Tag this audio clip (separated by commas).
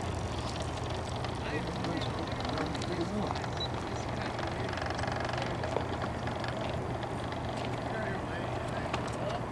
Motorboat, Water vehicle